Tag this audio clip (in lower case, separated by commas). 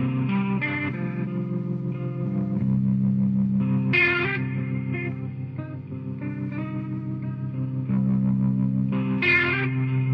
music, echo